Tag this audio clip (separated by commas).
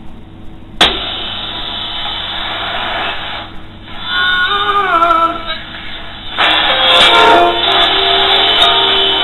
Radio